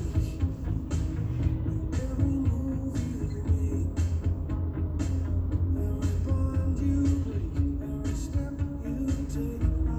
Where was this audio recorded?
in a car